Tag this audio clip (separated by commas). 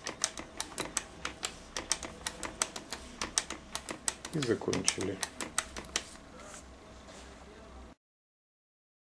Speech, Typewriter